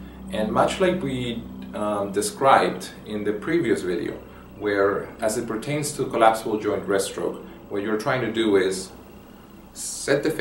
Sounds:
speech

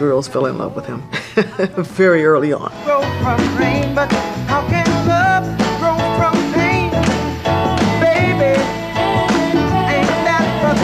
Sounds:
music, blues, speech

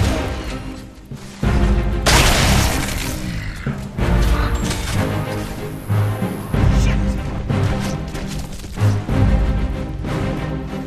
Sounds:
speech, music

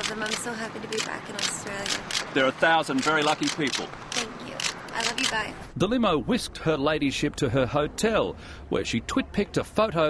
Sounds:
speech

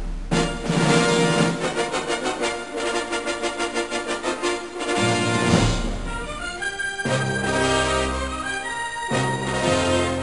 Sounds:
music

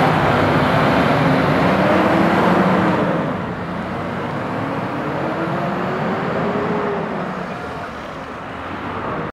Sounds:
vehicle, motor vehicle (road)

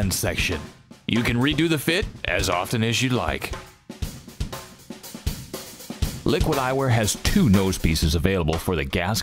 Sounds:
speech, music

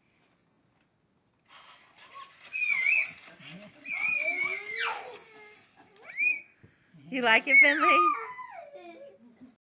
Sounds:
speech

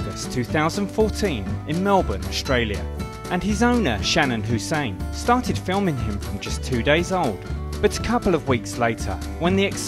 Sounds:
speech, music

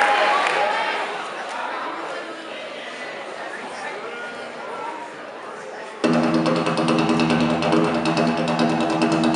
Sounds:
percussion, music, speech

